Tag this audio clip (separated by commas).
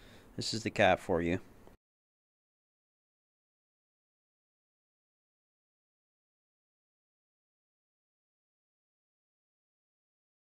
Speech